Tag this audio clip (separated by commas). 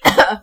Respiratory sounds, Cough